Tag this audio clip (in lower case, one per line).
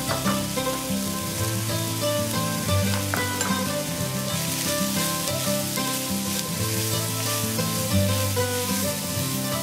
music